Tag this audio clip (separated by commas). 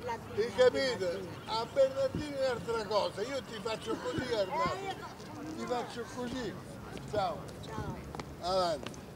Speech